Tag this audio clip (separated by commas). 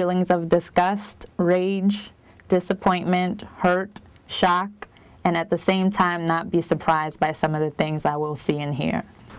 Speech